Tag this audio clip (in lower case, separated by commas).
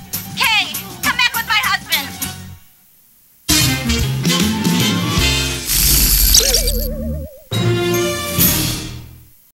music, television, speech